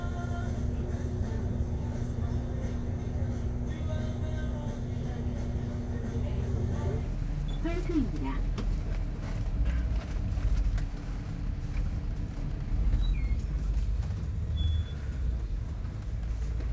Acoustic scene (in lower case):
bus